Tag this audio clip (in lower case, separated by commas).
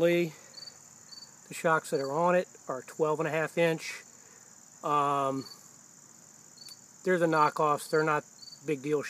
speech